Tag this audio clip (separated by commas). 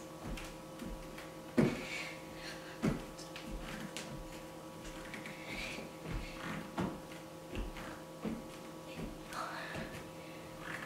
inside a large room or hall